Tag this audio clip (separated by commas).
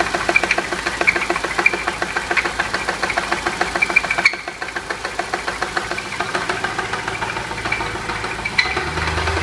Engine knocking, Speech, car engine knocking